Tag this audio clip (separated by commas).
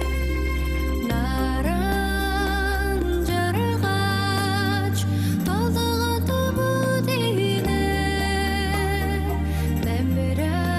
Music, Tender music